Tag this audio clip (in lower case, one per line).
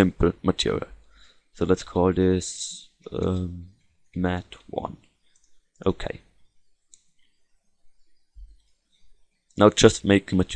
speech